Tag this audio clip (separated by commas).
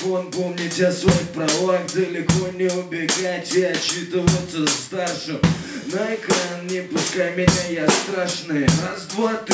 Music